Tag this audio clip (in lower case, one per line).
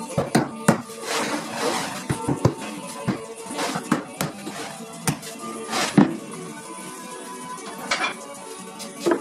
hammer